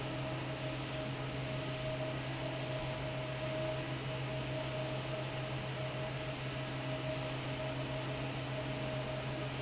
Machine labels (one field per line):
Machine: fan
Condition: normal